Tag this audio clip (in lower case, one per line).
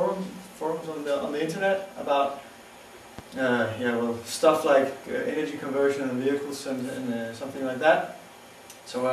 speech